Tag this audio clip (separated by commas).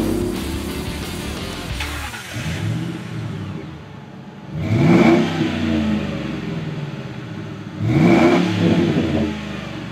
Music